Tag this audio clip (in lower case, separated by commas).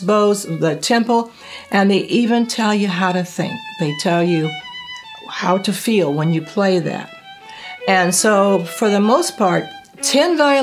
speech, musical instrument, music, fiddle